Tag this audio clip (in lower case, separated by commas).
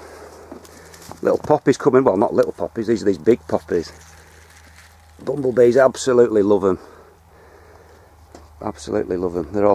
speech, outside, rural or natural